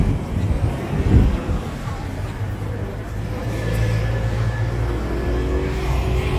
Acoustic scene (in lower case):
street